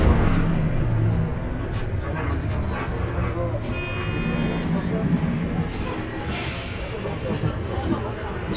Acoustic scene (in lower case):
bus